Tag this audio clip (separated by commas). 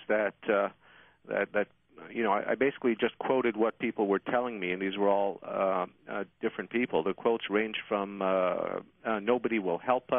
Speech